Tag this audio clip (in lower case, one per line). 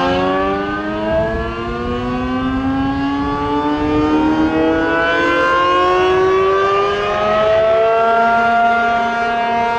civil defense siren
siren